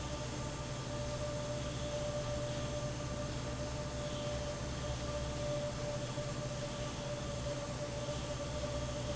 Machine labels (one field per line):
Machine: fan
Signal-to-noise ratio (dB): -6 dB